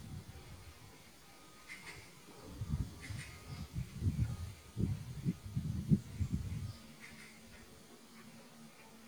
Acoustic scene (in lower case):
park